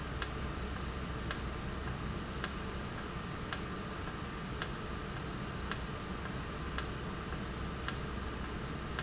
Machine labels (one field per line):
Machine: valve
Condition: normal